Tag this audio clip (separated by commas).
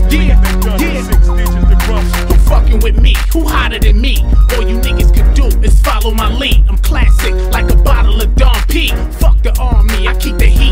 Music